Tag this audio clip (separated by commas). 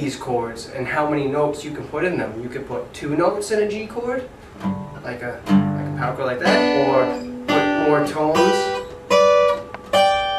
Acoustic guitar, Music, Speech, Musical instrument, Guitar, Plucked string instrument, Strum